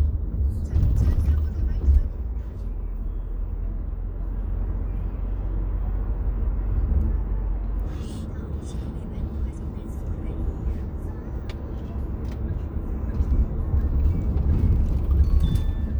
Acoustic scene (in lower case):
car